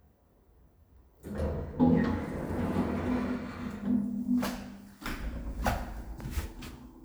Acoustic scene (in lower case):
elevator